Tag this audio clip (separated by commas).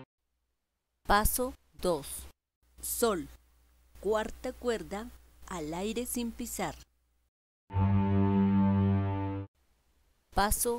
Musical instrument, Music, fiddle, Speech